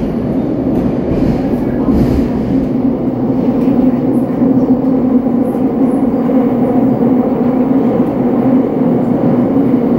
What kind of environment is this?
subway train